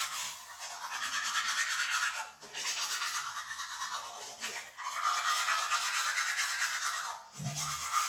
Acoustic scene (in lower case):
restroom